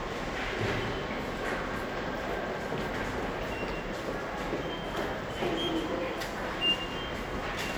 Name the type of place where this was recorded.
subway station